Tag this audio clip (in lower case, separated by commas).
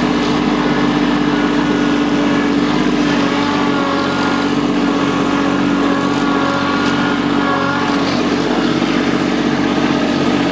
tractor digging